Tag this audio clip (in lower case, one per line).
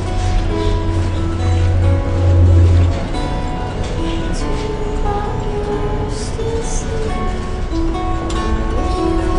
music